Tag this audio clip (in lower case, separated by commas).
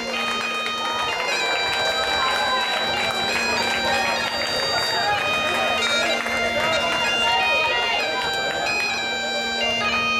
bagpipes